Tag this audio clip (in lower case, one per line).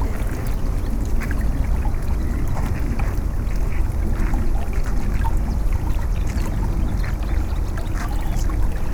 wild animals
bird
animal
water
stream